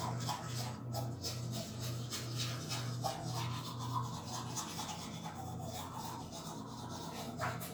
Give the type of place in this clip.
restroom